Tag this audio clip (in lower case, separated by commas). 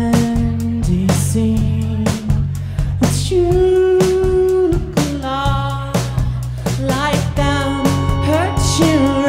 music